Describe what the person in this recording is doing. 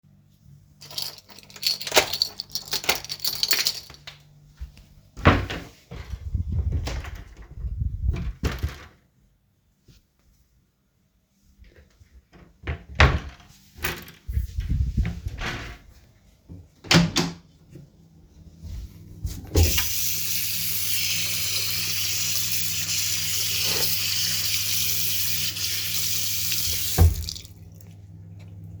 I closed the door with the keys, opened the wardrobe, closed the wardrobe, opened the door to the toilet, turned on the water tap, washed my hands and closed the tap.